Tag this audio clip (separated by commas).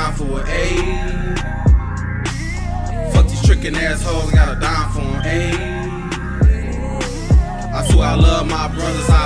Music